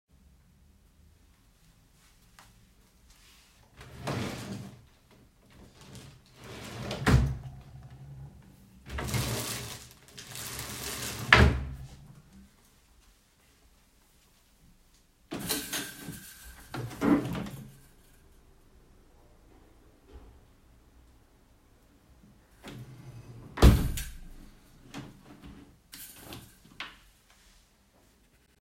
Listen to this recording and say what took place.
I placed my phone on a dresser in the bedroom. Then I opened and closed a dresser drawer two times. After that, I opened the window and closed it.